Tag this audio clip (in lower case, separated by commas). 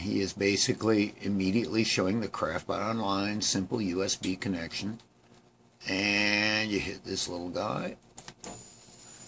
speech